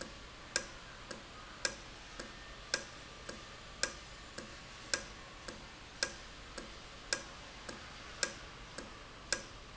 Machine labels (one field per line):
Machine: valve